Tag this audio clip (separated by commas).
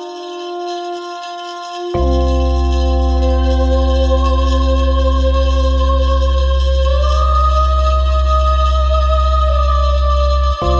Music